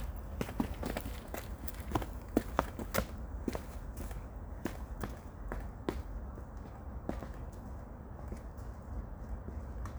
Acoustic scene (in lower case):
park